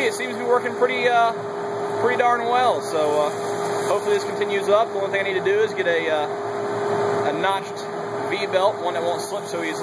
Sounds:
speech

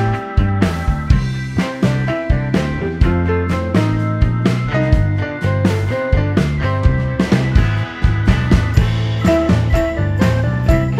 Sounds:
music

